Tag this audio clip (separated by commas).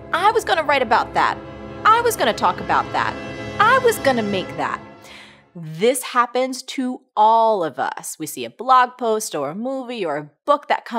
Music, Speech